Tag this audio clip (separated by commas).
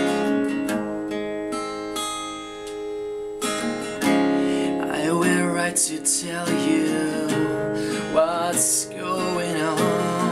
Strum, Guitar, Musical instrument, Music, Plucked string instrument